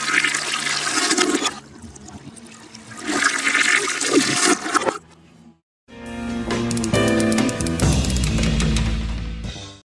A toilet is flushed and the water gurgles then music plays